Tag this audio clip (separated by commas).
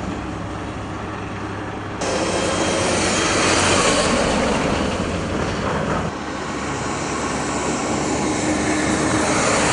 outside, rural or natural